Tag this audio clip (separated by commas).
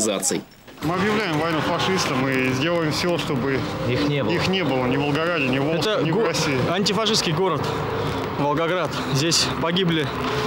outside, urban or man-made, Speech